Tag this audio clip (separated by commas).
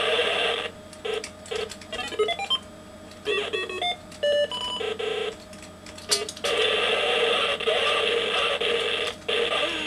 Sound effect